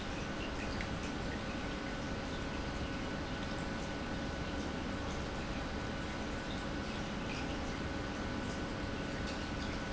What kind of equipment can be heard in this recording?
pump